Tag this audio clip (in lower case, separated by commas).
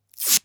packing tape, tearing, domestic sounds